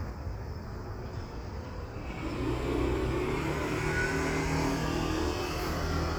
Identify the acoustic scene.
street